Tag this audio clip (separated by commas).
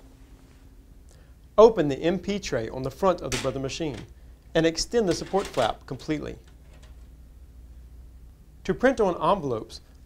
Speech